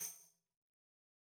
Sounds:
Percussion, Music, Tambourine, Musical instrument

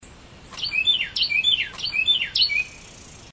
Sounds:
Animal, Bird, Bird vocalization, Wild animals, tweet

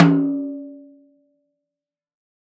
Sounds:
Drum, Snare drum, Music, Percussion, Musical instrument

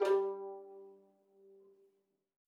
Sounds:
Music, Bowed string instrument, Musical instrument

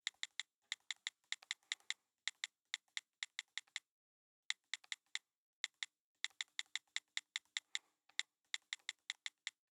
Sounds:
Telephone, Alarm

